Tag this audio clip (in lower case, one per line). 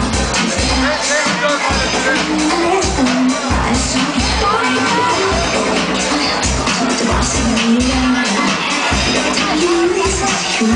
music
speech